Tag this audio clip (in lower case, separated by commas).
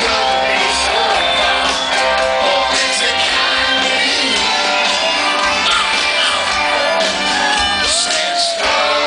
singing, musical instrument, crowd, rock music, music